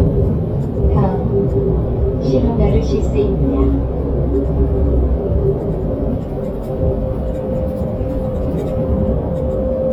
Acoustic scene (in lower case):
bus